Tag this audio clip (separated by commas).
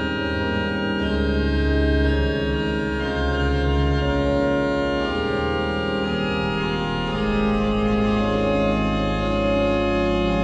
Keyboard (musical), Piano, Music, Musical instrument